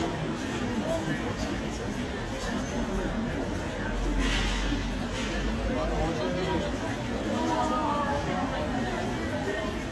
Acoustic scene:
crowded indoor space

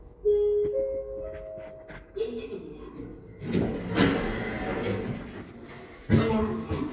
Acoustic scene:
elevator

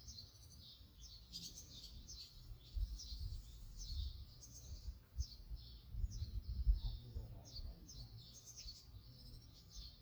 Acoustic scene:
park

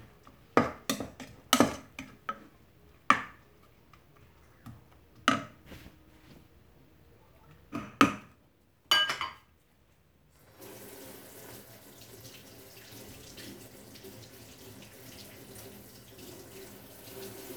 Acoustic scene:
kitchen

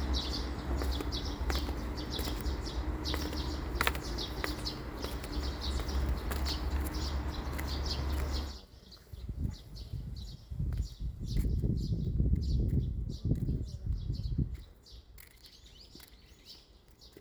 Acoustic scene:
park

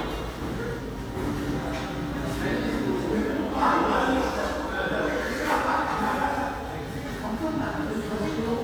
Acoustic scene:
cafe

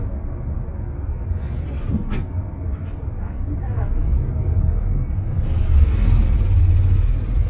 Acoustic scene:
bus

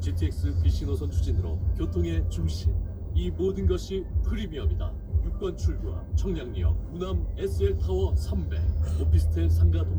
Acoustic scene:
car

